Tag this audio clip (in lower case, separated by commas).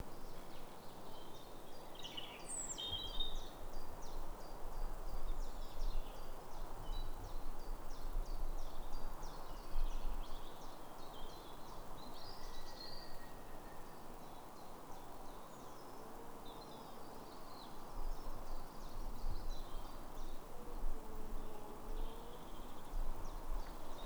animal, bird call, bird, wild animals